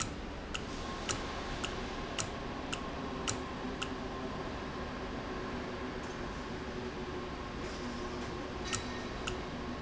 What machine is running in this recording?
valve